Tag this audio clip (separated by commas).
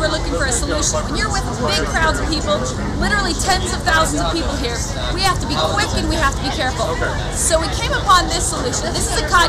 Speech